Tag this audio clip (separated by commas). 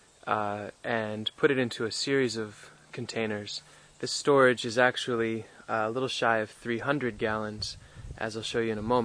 Speech